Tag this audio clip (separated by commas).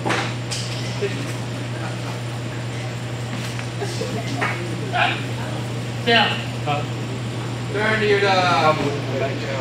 Speech